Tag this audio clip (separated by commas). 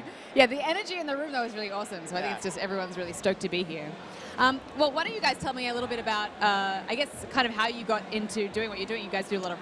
Speech